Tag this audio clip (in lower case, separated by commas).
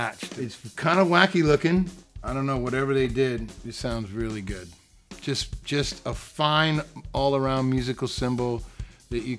hi-hat, drum, music, drum kit, musical instrument, speech